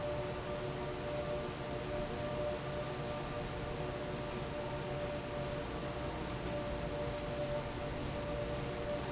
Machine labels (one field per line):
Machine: fan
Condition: normal